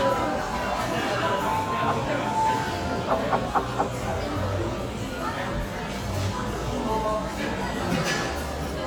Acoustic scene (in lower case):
cafe